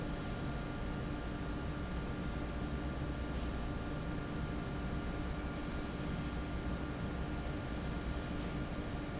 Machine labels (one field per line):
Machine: fan